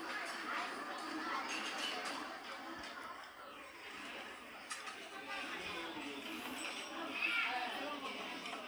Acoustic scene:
restaurant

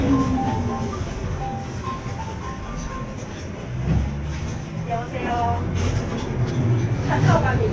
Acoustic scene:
bus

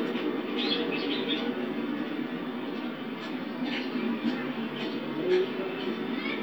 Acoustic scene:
park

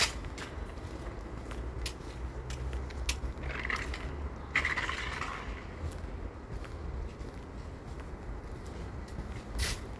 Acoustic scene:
residential area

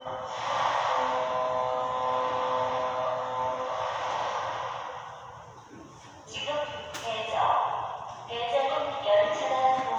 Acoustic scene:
subway station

